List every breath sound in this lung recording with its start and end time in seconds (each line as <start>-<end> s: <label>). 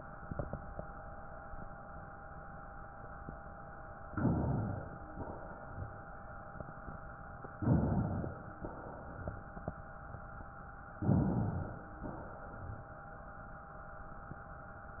4.03-5.10 s: inhalation
5.12-6.19 s: exhalation
7.52-8.57 s: inhalation
8.58-9.77 s: exhalation
10.96-11.98 s: inhalation
11.99-13.04 s: exhalation